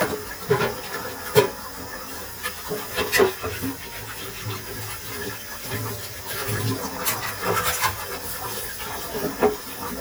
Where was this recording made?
in a kitchen